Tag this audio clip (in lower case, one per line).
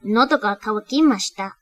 speech
human voice
female speech